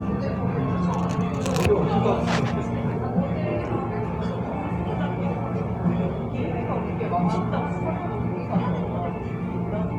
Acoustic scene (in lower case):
cafe